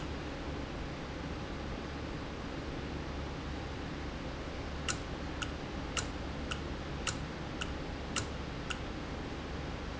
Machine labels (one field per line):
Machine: valve